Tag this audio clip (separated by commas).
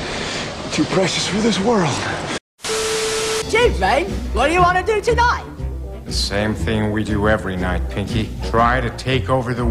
Music, Speech